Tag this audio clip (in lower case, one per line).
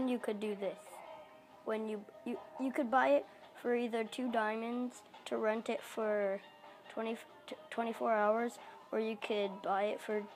speech